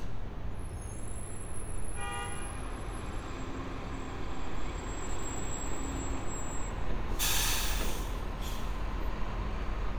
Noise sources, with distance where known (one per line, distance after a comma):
large-sounding engine, near
car horn